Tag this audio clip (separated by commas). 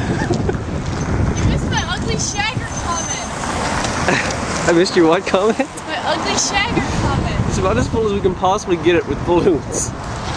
Speech, Car passing by